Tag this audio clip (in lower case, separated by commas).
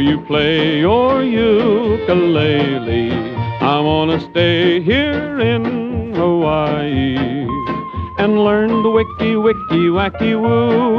music